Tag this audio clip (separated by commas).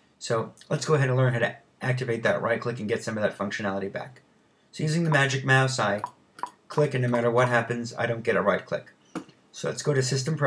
Speech